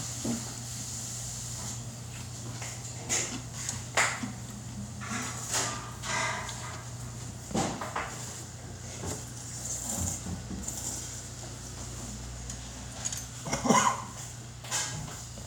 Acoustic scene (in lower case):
restaurant